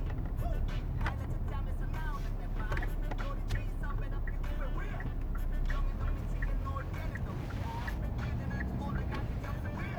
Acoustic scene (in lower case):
car